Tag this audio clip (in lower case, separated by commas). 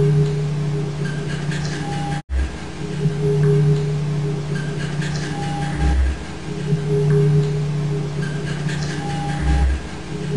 music